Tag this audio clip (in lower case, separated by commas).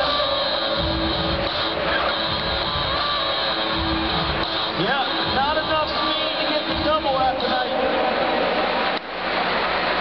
speech, music